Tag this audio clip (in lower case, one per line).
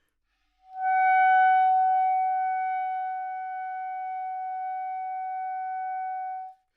music
musical instrument
wind instrument